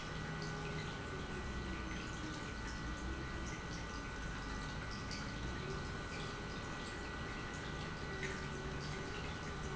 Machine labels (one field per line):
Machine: pump